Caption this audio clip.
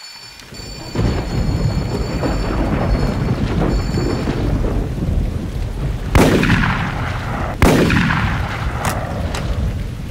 Gun firing and shooting during a rain and thunderstorm